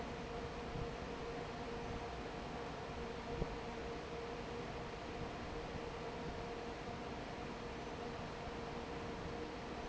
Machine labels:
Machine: fan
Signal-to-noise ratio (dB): 6 dB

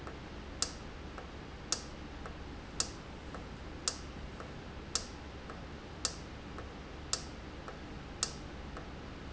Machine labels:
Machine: valve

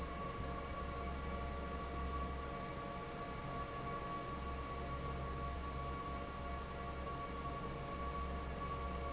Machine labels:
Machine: fan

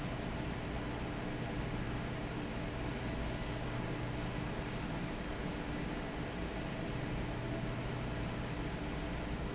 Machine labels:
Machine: fan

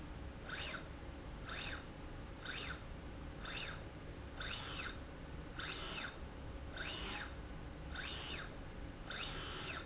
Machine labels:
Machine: slide rail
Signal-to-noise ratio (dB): 6 dB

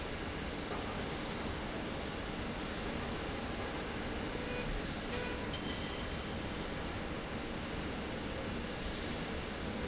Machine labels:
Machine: slide rail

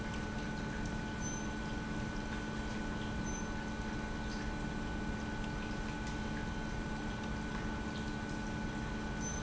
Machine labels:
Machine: pump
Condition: normal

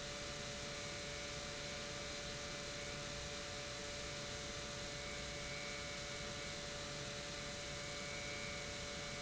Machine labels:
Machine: pump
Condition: normal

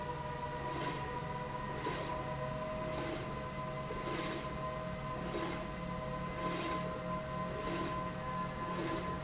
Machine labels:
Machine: slide rail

